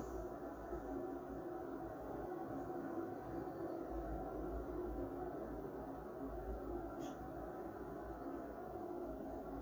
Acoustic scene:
elevator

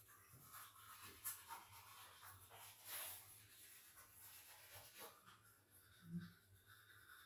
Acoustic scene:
restroom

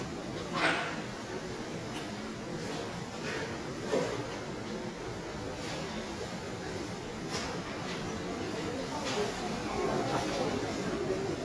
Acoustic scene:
subway station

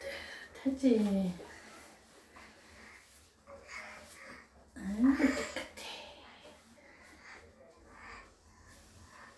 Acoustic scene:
restroom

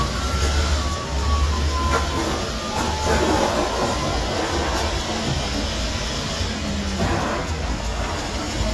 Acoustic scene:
residential area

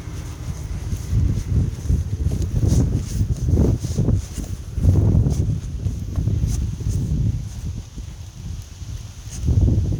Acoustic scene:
residential area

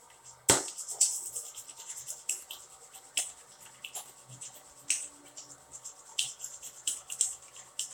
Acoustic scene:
restroom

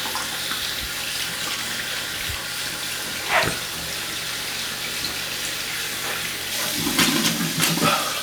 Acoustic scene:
restroom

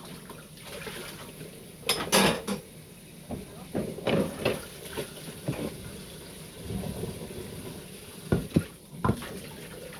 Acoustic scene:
kitchen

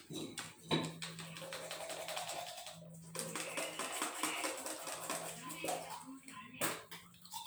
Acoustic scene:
restroom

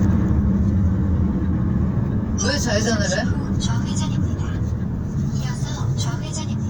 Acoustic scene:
car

